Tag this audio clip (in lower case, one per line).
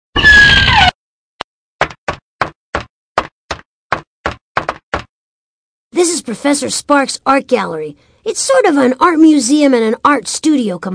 tick